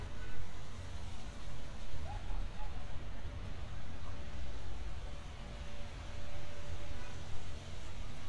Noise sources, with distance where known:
car horn, far; person or small group shouting, far

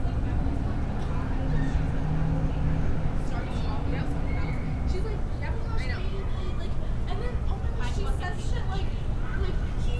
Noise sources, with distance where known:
person or small group talking, near

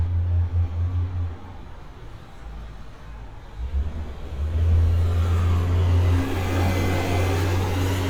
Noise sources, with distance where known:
engine of unclear size, near

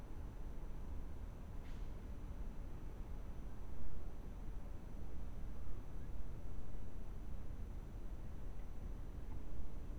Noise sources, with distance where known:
background noise

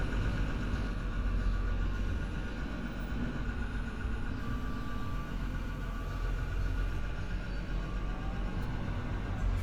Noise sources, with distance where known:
engine of unclear size; reverse beeper

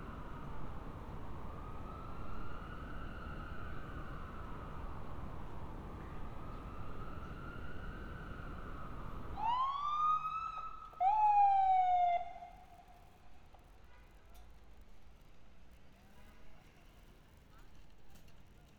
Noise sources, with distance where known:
siren

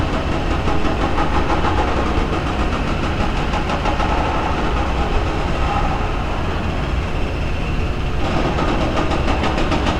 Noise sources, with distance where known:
unidentified impact machinery, near

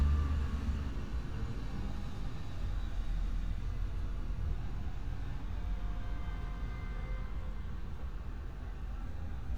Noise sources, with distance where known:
engine of unclear size; car horn, far

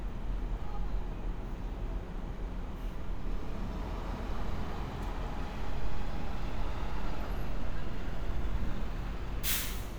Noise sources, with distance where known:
large-sounding engine

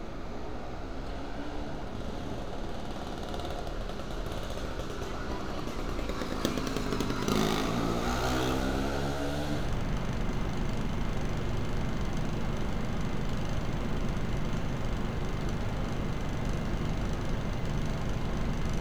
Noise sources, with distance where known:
small-sounding engine

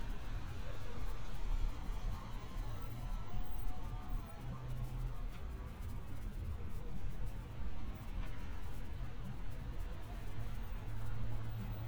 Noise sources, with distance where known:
background noise

